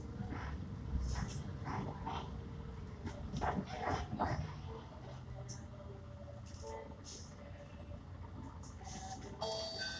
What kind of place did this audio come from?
bus